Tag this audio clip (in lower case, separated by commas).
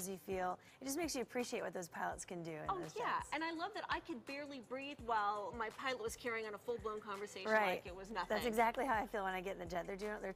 music, speech